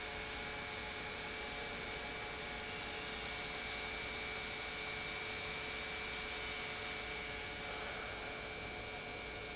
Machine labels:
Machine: pump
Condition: normal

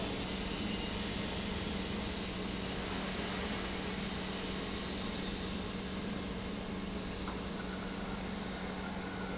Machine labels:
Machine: pump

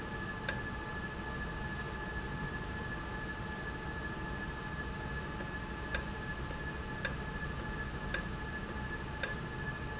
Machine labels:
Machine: valve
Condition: normal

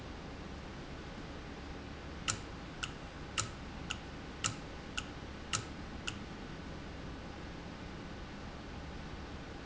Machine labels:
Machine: valve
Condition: normal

